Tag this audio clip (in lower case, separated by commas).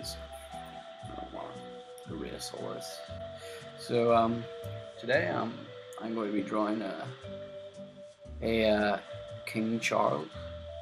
music, speech